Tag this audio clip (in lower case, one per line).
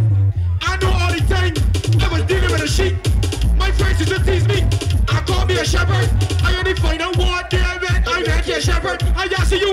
music
speech